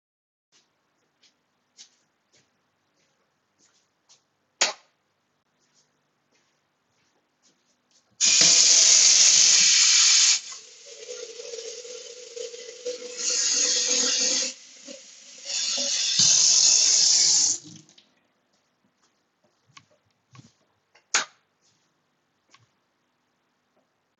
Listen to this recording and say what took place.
I have started walking from living room to the kitchen, I have then turned the light on in the kitchen, I have turned on the tap, picked up a glass, then I have filled it with water. I have then turned off the tap, walked over to the light switch and turned the lights off.